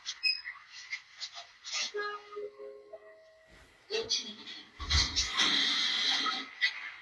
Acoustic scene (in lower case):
elevator